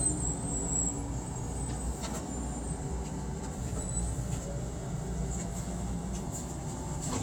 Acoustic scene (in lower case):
subway train